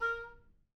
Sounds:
musical instrument
woodwind instrument
music

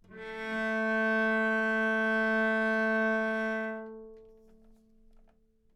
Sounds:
musical instrument
music
bowed string instrument

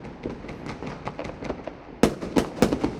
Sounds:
explosion
fireworks

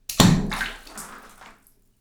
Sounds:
liquid
splash

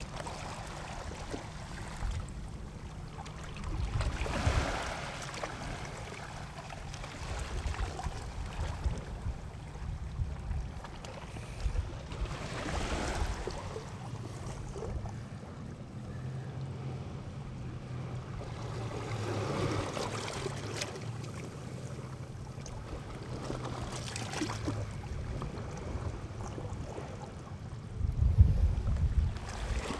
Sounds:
ocean
surf
water

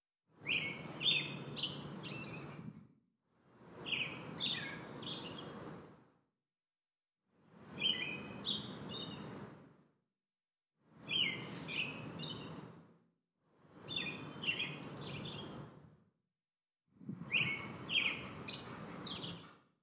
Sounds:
bird song
animal
bird
wild animals
chirp

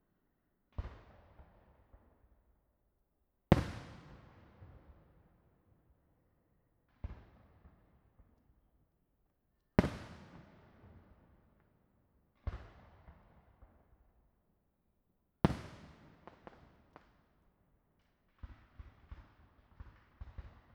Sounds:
fireworks
explosion

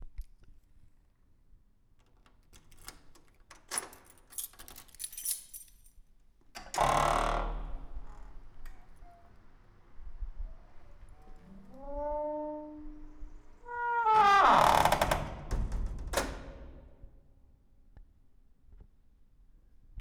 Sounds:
keys jangling
home sounds

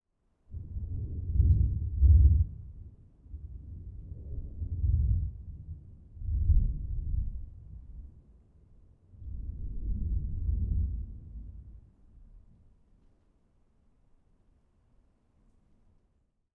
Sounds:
thunder
thunderstorm

